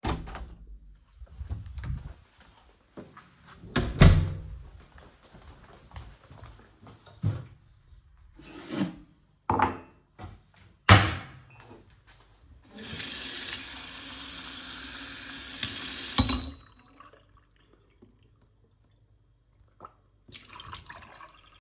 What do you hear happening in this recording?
I went into the kitchen, took out a glass from the cupboard and filled it with some water.